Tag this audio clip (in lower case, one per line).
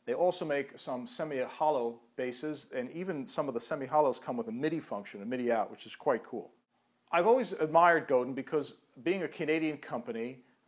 speech